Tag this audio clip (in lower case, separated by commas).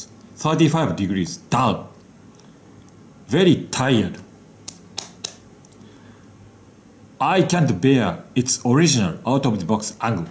inside a small room, speech